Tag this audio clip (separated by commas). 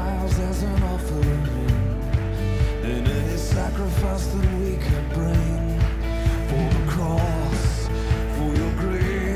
Music